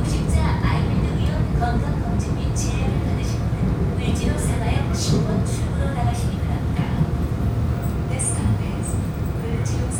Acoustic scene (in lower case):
subway train